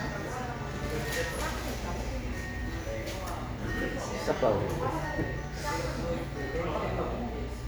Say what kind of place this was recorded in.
cafe